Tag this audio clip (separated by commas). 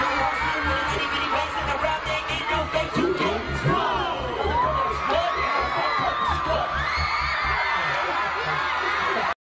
Male singing, Music